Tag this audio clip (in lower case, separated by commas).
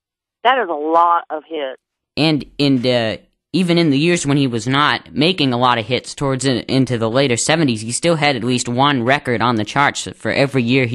speech, radio